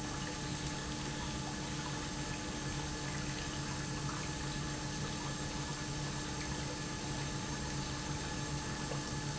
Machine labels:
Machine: pump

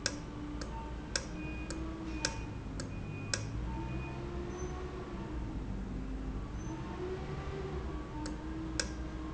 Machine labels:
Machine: valve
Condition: normal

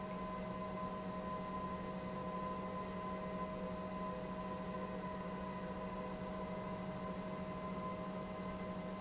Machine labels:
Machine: pump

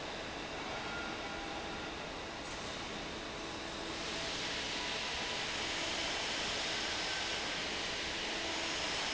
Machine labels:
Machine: fan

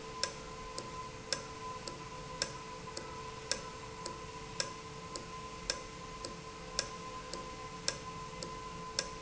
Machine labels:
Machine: valve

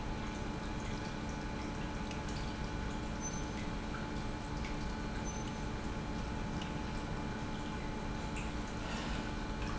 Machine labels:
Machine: pump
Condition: normal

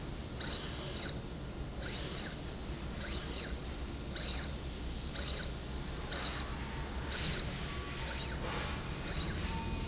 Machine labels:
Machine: slide rail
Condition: abnormal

